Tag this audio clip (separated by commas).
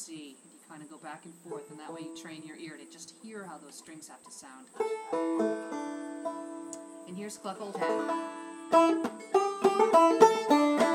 Music, Speech, Banjo